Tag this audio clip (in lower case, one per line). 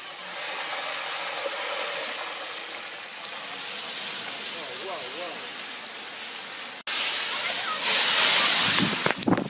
speech